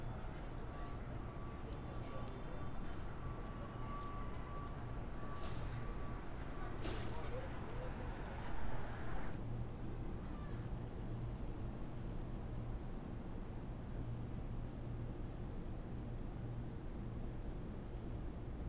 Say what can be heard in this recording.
background noise